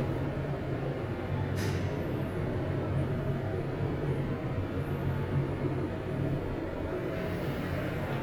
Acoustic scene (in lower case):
elevator